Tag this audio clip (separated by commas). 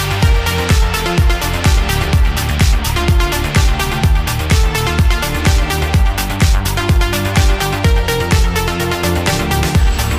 Music